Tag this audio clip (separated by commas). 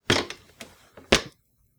Walk